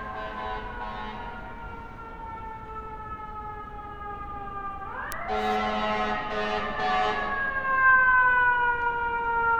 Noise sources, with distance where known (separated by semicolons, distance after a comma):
siren, near